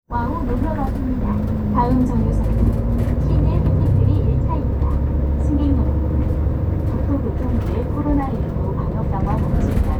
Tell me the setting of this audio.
bus